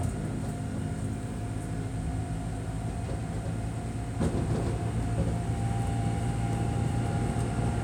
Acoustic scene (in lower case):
subway train